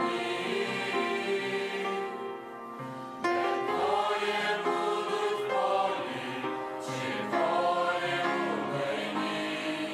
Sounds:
music, choir

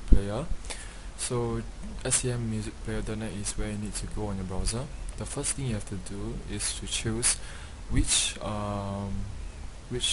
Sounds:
speech

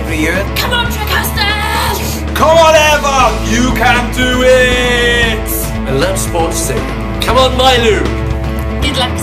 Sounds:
speech, music

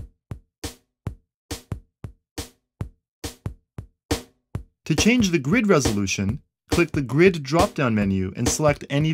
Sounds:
music, speech

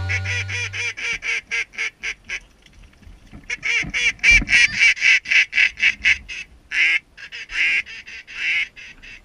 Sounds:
honk, goose, fowl

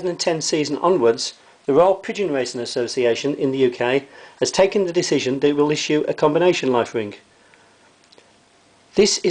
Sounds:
speech

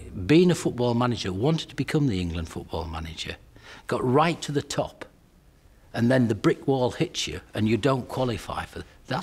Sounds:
narration, speech

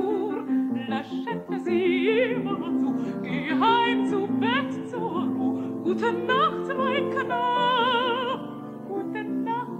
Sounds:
opera, music, singing

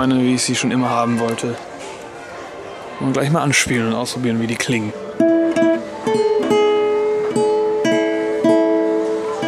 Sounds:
music, guitar, speech

